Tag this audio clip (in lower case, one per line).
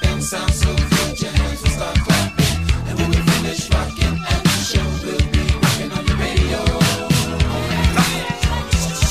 music